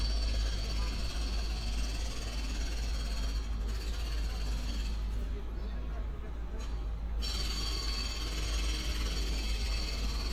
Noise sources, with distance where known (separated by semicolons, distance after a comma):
jackhammer, near